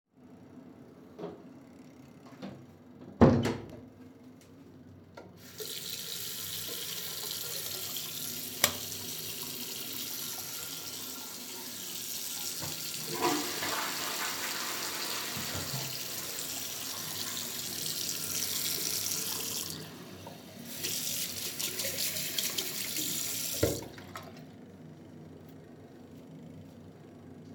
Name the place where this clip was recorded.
bathroom